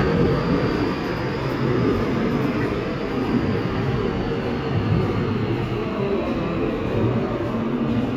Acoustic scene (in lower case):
subway station